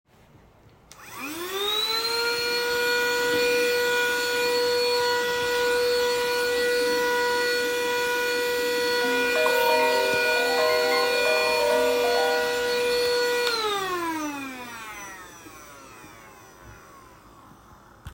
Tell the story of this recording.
I walked towrds the vacuum and turn it on. While vacuuming, I get a call from someone.